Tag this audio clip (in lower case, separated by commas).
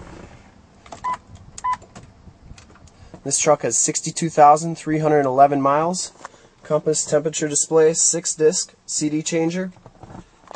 speech